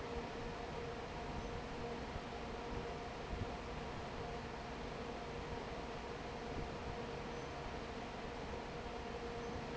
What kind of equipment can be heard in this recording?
fan